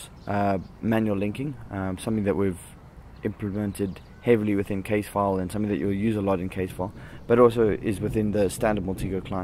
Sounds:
Speech

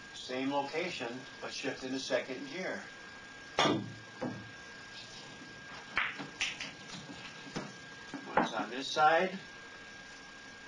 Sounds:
Speech

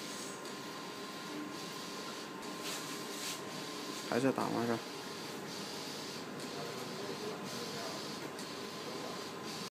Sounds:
Printer, Speech

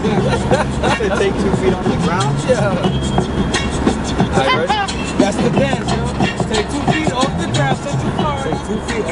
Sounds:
Vehicle, Music, Speech, Car

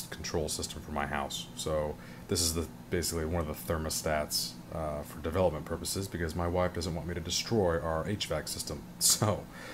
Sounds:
Speech

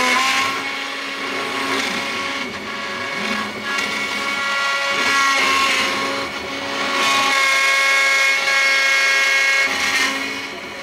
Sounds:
inside a small room

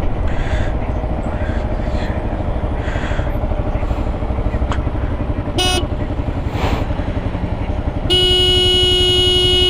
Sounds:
honking

